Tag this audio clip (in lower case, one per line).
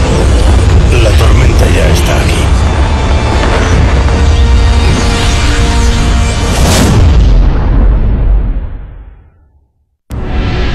speech